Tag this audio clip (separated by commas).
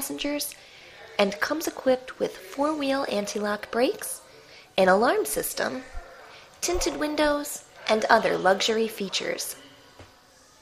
Speech